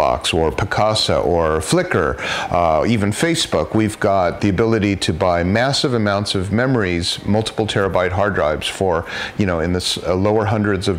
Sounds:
speech

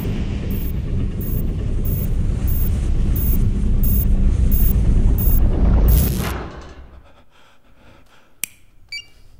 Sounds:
inside a small room

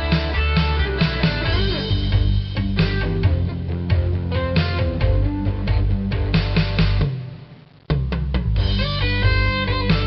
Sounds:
music

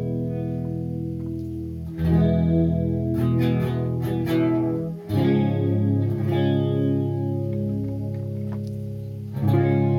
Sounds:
double bass, music

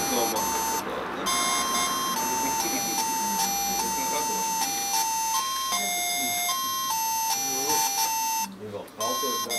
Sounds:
music, speech

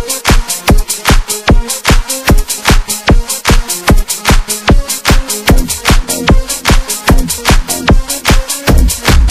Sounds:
dance music, music, house music

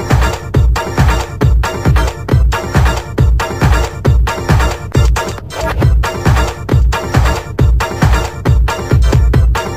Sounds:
music, exciting music

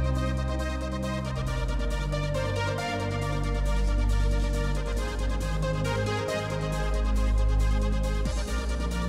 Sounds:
music

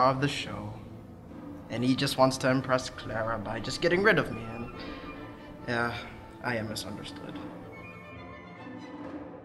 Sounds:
speech, music

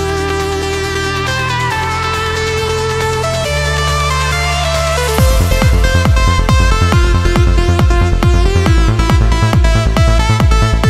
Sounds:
music

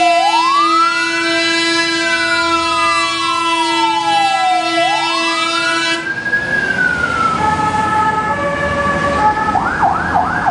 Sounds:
motor vehicle (road), vehicle, police car (siren), siren, emergency vehicle

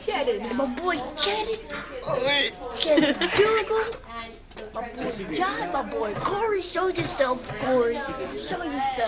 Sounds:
speech

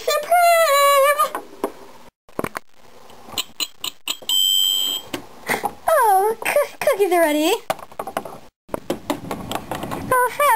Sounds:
inside a small room, speech

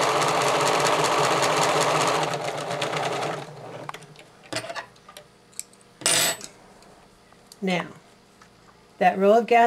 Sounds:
speech, sewing machine

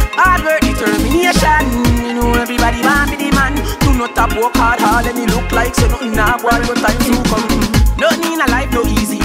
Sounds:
music of africa, music, afrobeat

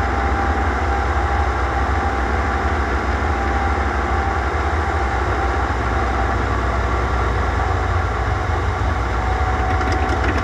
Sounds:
vehicle, outside, rural or natural, aircraft

